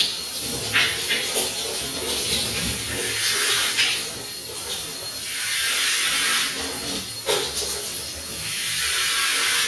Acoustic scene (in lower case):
restroom